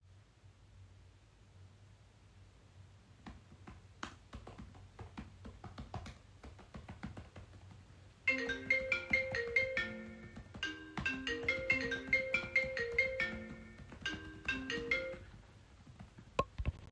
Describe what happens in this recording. I was typing on my pc keyboard, while phone ringing in the background